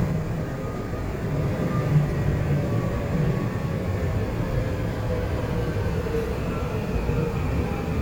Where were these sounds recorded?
on a subway train